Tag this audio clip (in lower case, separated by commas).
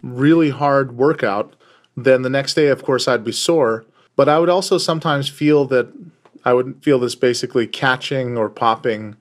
speech